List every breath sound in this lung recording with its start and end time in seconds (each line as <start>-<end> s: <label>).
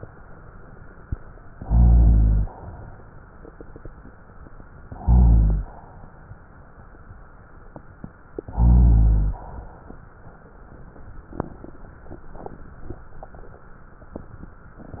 1.59-2.51 s: inhalation
4.87-5.78 s: inhalation
8.49-9.40 s: inhalation